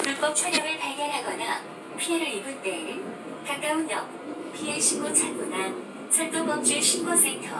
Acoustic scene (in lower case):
subway train